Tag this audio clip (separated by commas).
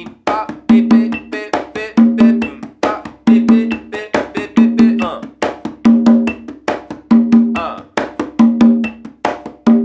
playing congas